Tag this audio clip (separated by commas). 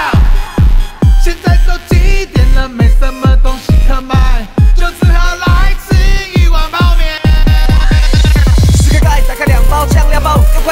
Music, Pop music